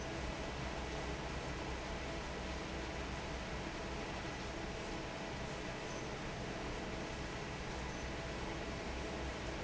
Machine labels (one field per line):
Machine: fan